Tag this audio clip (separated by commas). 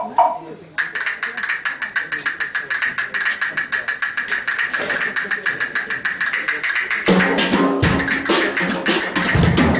Speech, Music, Vibraphone